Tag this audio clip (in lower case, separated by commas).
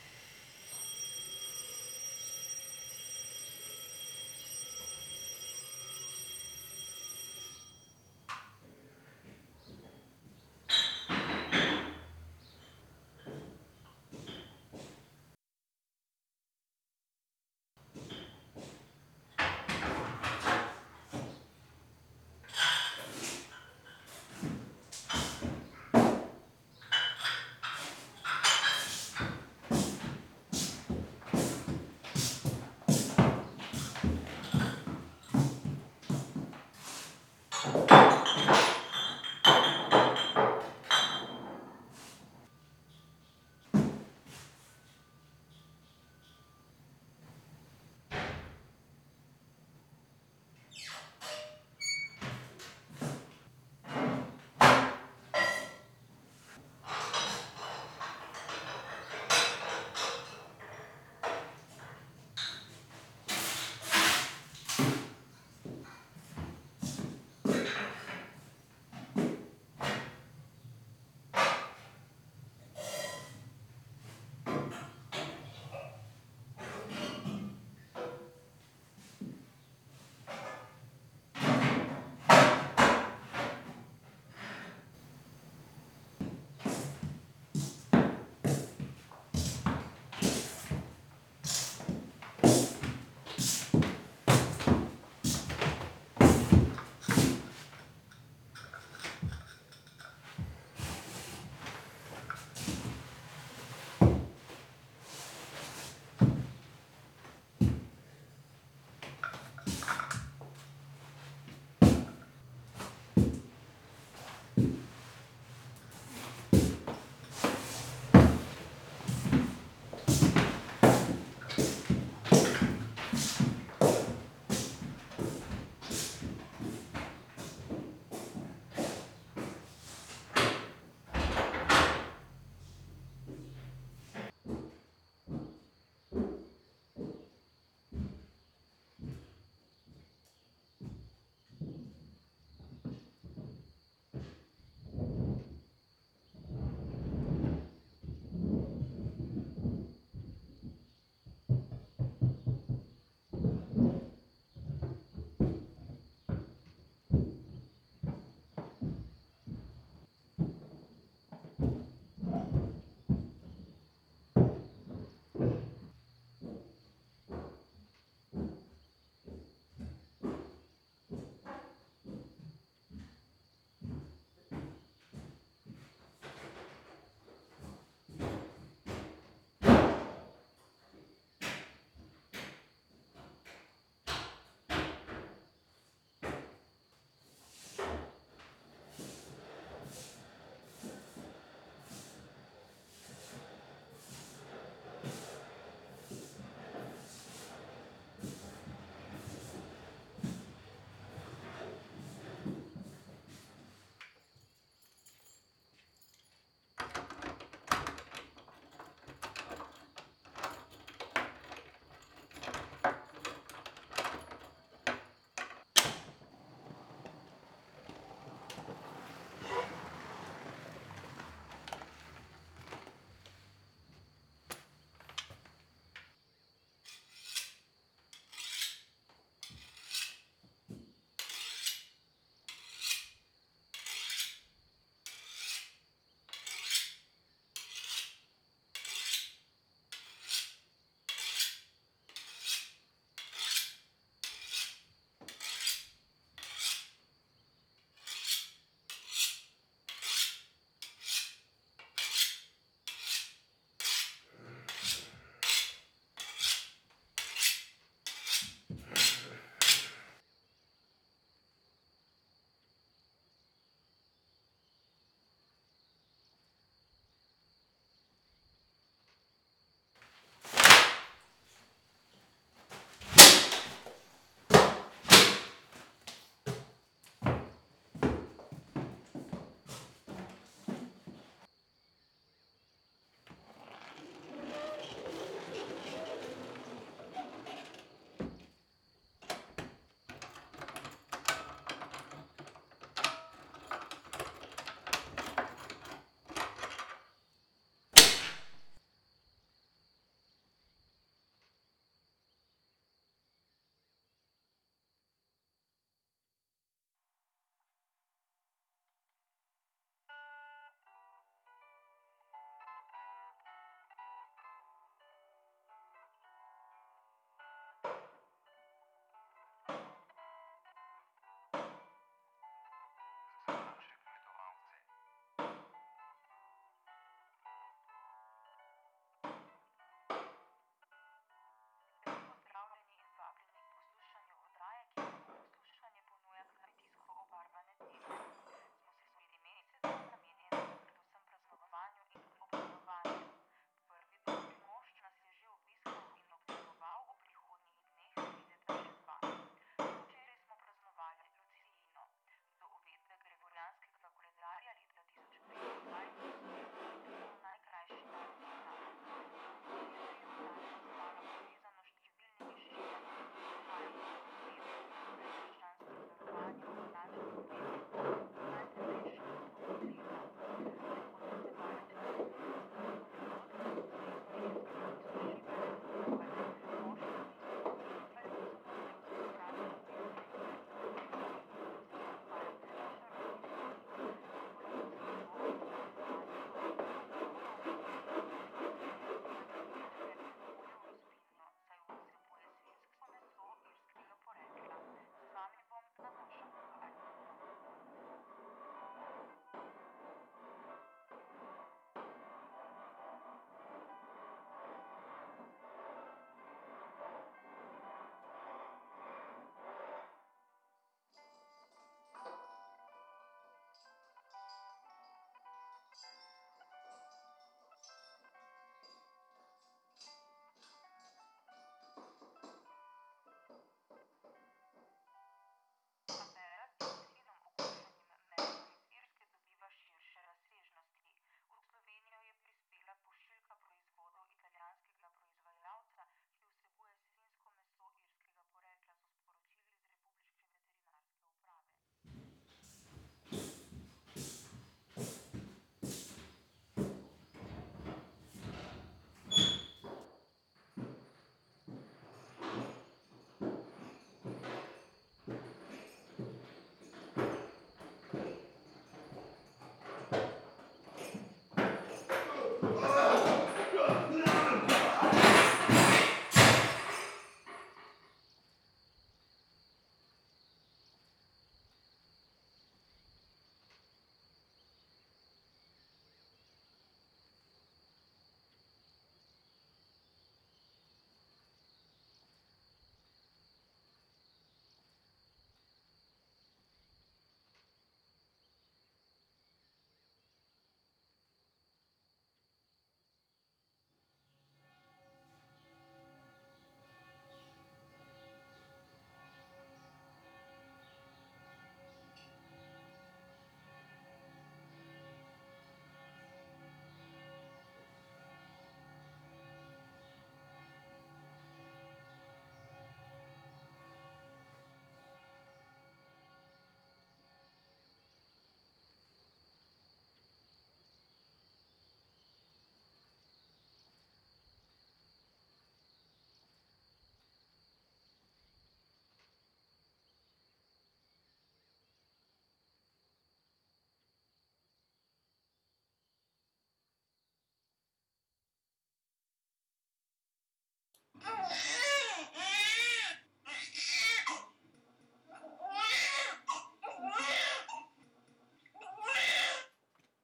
human voice, speech, male speech